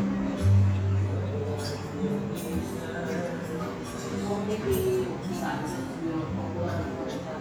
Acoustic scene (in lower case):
restaurant